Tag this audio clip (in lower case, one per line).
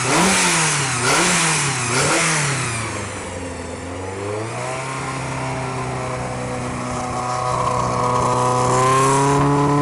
vehicle
vroom
car
engine